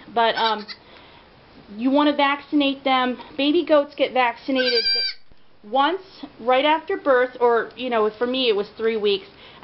Simultaneously a woman speaks and a baby goat squeals